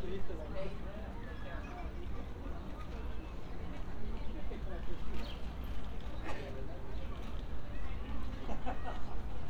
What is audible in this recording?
background noise